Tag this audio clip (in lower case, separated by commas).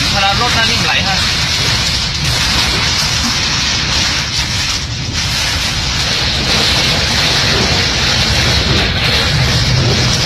raining